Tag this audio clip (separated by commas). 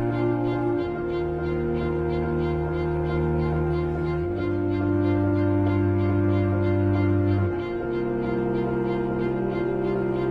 Cello